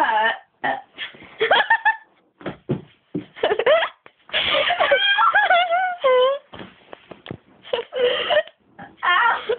People are talking laughing and burping